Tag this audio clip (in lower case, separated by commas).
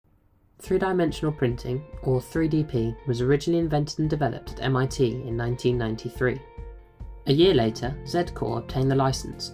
speech, music